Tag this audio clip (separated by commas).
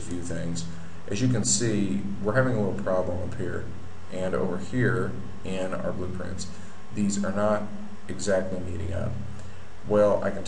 Speech